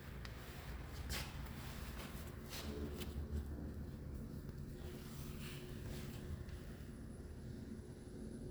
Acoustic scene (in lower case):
elevator